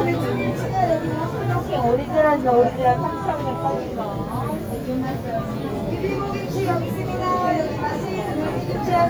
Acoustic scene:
crowded indoor space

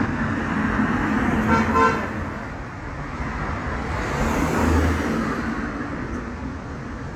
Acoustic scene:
street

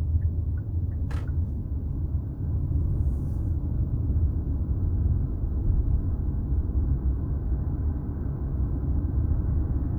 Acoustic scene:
car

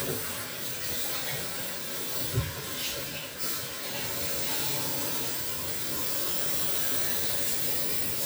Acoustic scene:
restroom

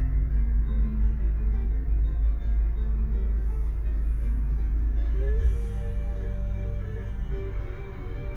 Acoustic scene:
car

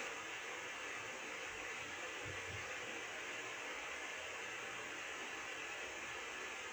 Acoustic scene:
subway train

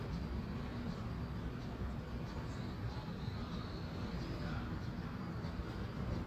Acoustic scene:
residential area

